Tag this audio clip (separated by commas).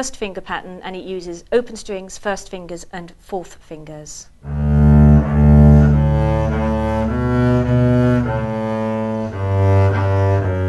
playing double bass